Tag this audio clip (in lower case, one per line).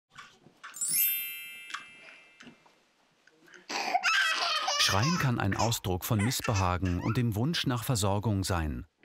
speech